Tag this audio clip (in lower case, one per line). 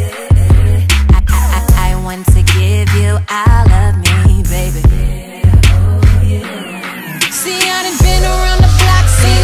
music